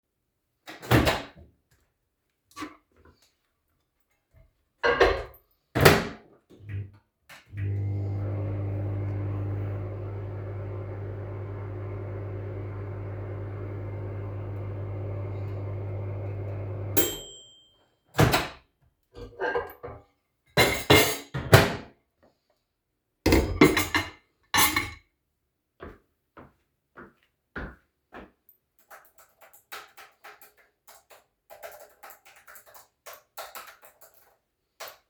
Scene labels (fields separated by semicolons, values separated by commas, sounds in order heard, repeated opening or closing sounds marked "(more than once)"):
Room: kitchen, living room; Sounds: microwave, cutlery and dishes, footsteps, keyboard typing